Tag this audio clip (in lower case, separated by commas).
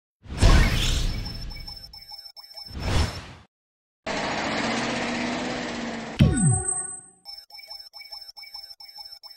music, speech